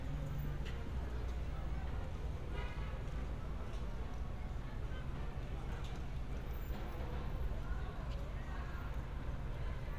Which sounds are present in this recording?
engine of unclear size, car horn, music from an unclear source, unidentified human voice